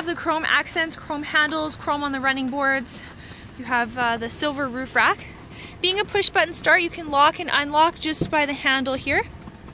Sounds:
Speech

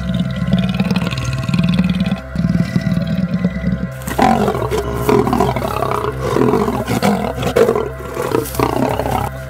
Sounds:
lions growling, roaring cats, Wild animals, Music, Animal, Roar

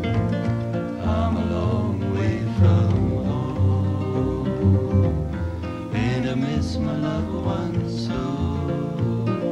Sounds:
Music

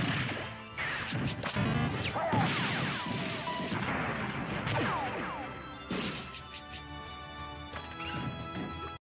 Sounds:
Music

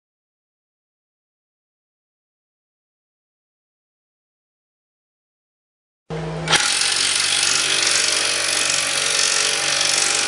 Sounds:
Tools

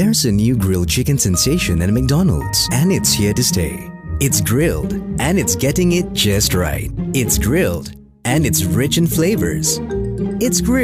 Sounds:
Music, Speech

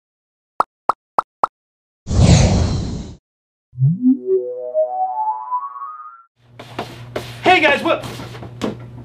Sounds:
Speech, inside a small room

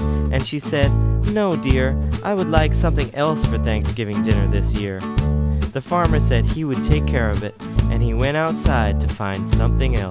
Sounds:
Speech, Music

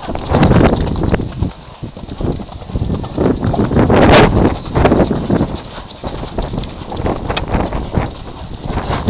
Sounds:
Clip-clop, horse clip-clop, Animal

